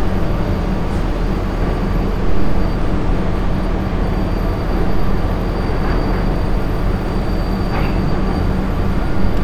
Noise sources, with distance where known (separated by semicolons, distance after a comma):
large-sounding engine, near